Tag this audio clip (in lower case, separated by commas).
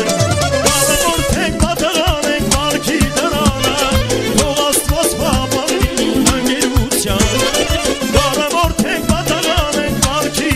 music